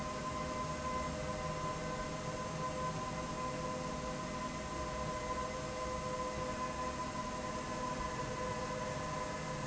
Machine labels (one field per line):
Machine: slide rail